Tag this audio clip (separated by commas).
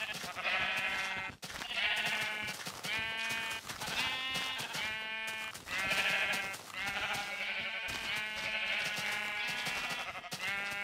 Bleat